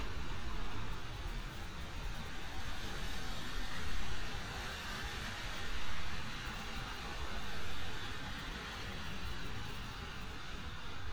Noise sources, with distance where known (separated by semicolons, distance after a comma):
medium-sounding engine, near